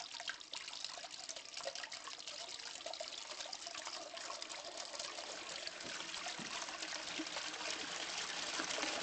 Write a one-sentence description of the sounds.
Water runs softly then quickly